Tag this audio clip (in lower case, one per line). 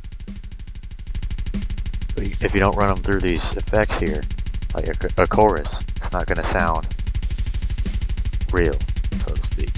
music
speech